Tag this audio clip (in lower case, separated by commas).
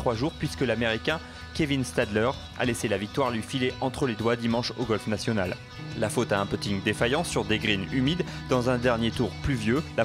music, speech